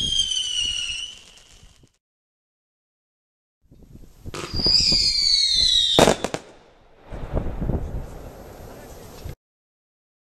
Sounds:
fireworks banging, speech, fireworks

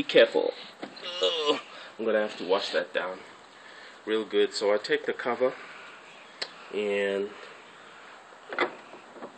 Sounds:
speech

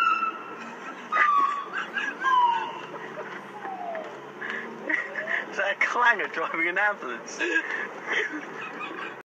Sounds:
vehicle, speech

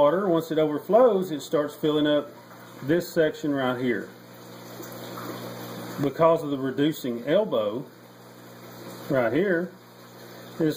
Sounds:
speech

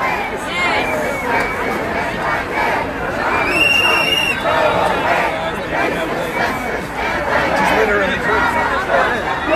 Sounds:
people marching

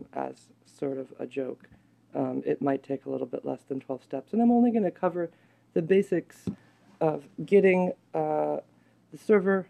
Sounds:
speech

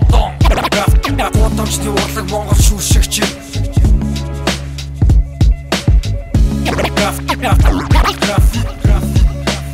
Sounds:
music, dance music

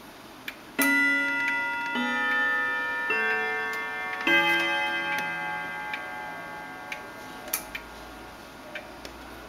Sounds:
tick-tock

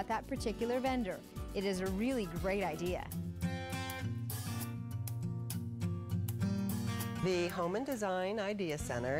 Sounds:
speech, music

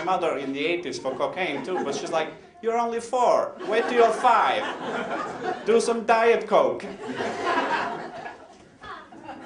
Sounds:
laughter, speech

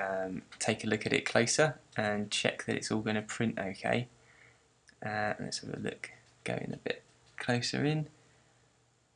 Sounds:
speech

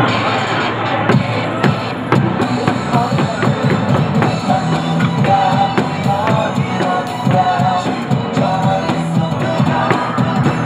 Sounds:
music

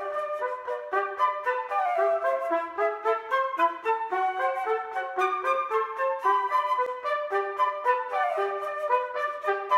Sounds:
playing cornet

